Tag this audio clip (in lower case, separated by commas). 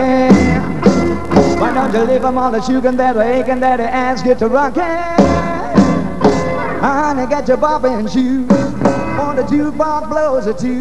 music, rock and roll, roll